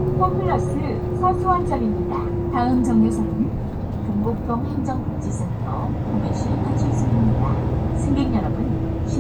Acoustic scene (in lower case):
bus